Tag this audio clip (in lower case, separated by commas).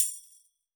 tambourine, music, musical instrument, percussion